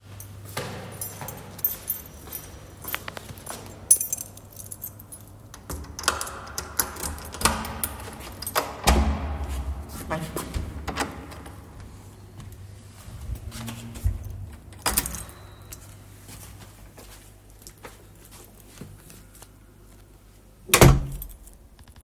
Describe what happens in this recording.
I walked to my door holding my keychain. Then I opened the door, entered the room, and closed the door.